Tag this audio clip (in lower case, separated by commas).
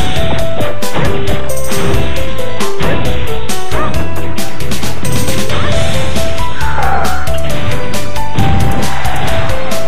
music